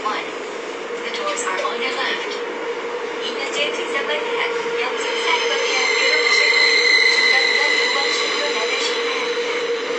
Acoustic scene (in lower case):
subway train